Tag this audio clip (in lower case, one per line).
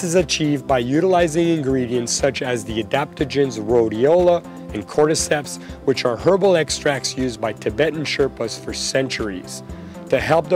music
man speaking
speech